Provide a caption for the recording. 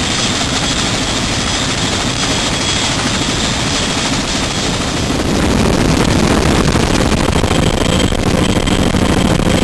An increasingly loud sound of an aircraft